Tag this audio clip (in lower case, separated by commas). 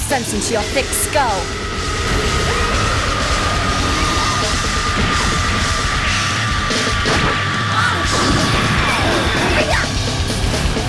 heavy metal, music, speech